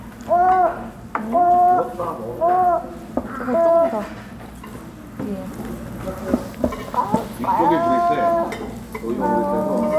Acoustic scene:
restaurant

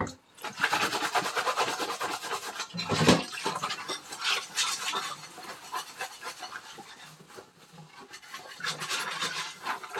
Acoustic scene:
kitchen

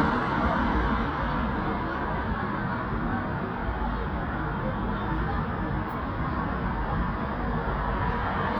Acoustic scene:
street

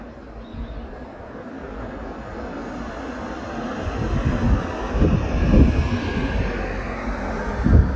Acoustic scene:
street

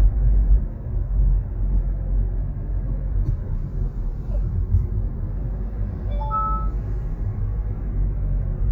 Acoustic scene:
car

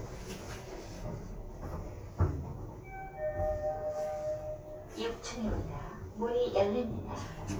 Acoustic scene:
elevator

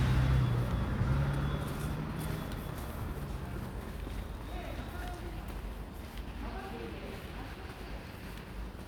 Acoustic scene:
residential area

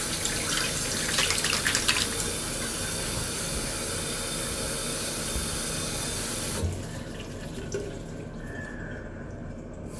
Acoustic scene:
restroom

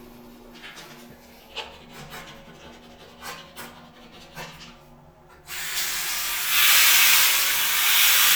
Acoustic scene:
restroom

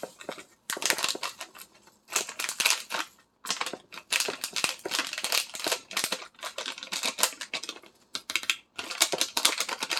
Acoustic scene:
kitchen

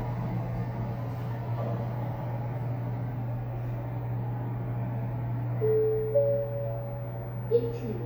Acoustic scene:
elevator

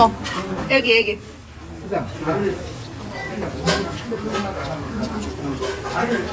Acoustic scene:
restaurant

